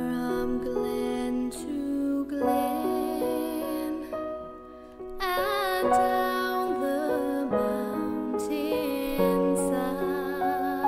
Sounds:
female singing
music

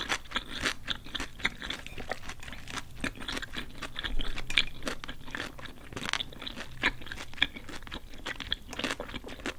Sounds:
people slurping

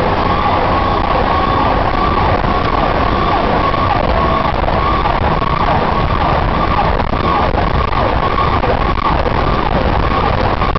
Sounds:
siren
emergency vehicle
ambulance (siren)

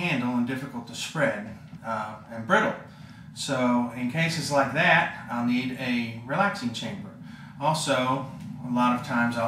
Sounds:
speech

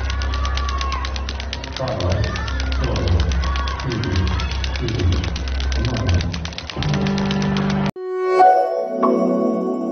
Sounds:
rope skipping

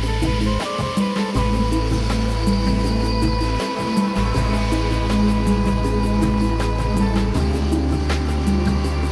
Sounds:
music

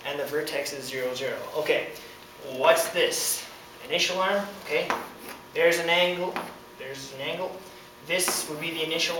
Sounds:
speech
inside a small room

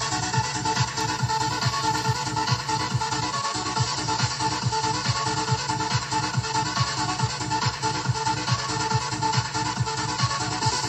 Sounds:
music

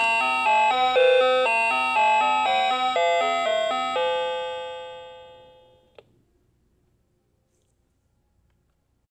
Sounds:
music

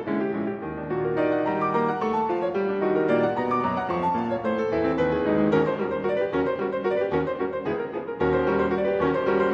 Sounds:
tender music
music

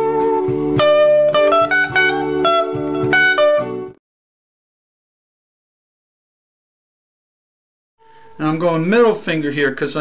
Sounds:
music
speech
electric guitar
guitar
musical instrument

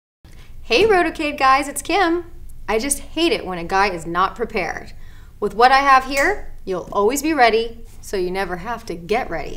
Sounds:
speech
inside a small room

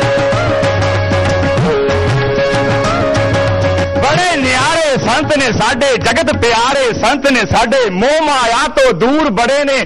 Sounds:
speech
music

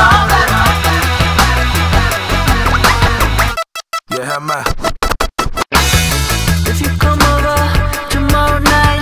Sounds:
music

